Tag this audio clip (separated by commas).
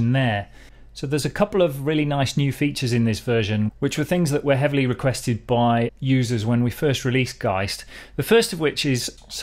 Speech